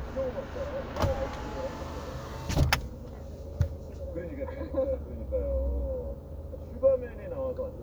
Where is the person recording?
in a car